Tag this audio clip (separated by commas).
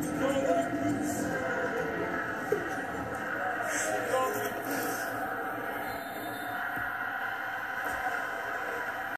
Music, Speech